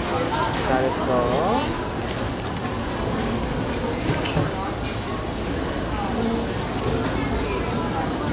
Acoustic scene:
restaurant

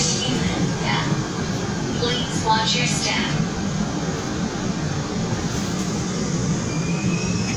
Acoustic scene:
subway train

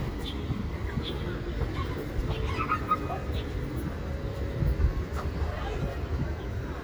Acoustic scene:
park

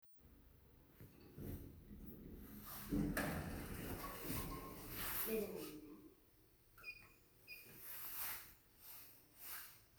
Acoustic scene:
elevator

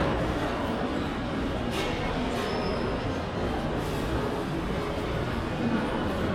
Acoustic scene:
crowded indoor space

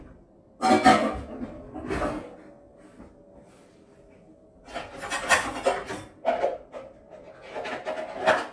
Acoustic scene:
kitchen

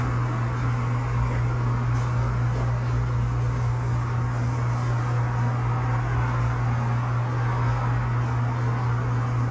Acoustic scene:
cafe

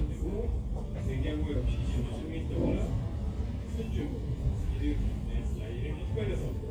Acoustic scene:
crowded indoor space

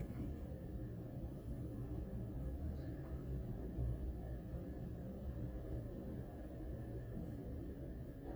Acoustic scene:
elevator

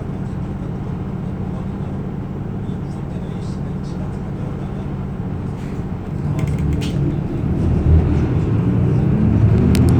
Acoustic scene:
bus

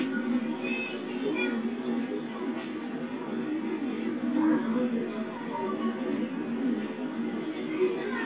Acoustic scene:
park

